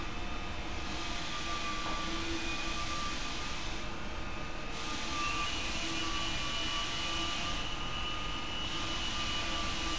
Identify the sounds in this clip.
unidentified powered saw